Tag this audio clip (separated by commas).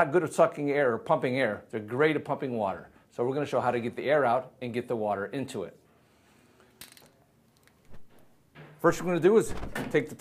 Speech